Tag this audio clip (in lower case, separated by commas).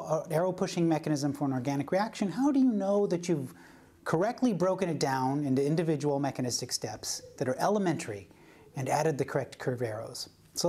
speech